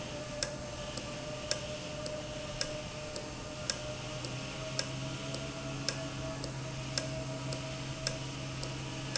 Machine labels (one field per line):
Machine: valve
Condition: normal